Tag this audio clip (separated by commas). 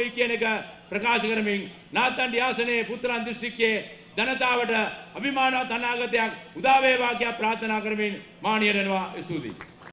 Speech, man speaking